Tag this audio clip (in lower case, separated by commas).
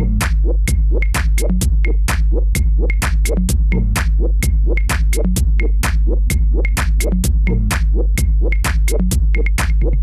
drum machine